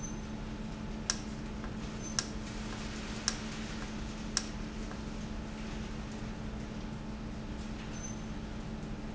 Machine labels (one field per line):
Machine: valve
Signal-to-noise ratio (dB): -6 dB